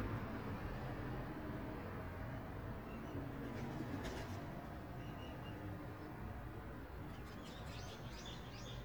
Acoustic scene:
residential area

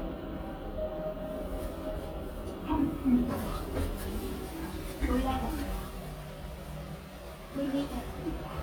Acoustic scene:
elevator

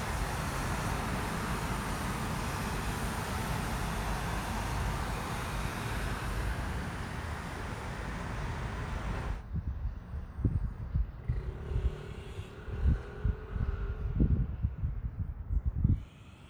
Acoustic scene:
street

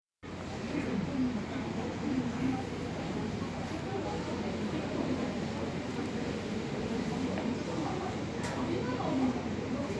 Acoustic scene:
subway station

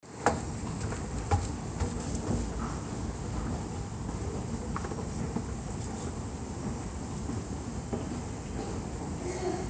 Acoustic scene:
subway station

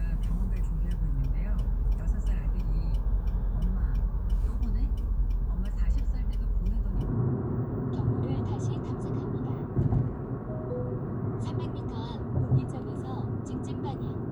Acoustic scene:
car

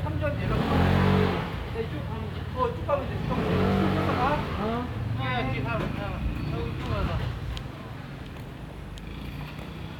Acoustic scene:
residential area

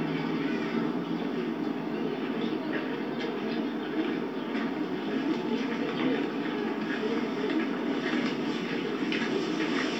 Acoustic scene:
park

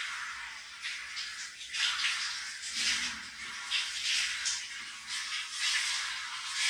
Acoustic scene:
restroom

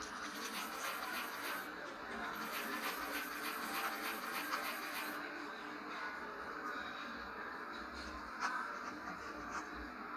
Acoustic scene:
cafe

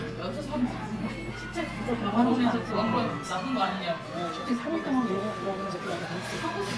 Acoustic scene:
crowded indoor space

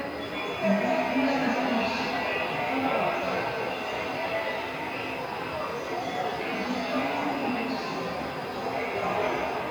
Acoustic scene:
subway station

